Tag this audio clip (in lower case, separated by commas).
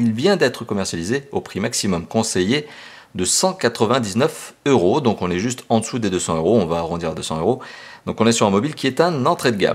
speech